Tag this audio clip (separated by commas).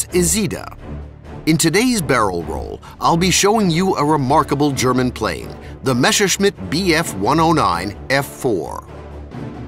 Speech, Music